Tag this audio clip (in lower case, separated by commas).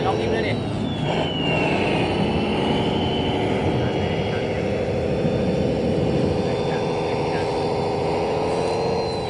vehicle, truck, speech